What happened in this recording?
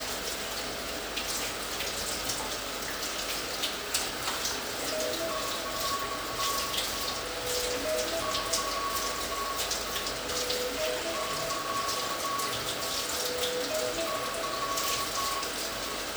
I was taking the shower in my bathroom, and someone was using the vacuum cleaner in the other room. While taking the shower, my phone was in the bathroom, and the phone alarm went off.